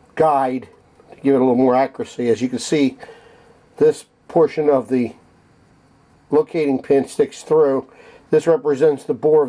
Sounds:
Speech

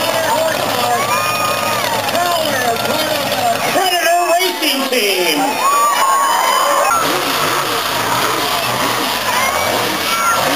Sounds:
Vehicle, Truck, Speech

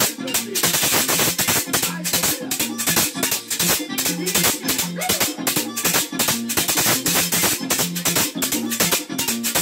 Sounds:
playing guiro

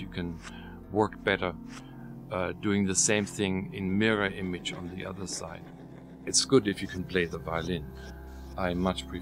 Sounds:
Speech

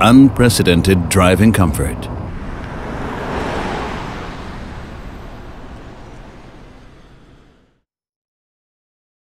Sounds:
Car, Speech, Vehicle

